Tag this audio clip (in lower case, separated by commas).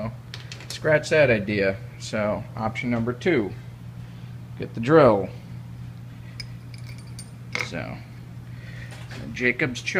speech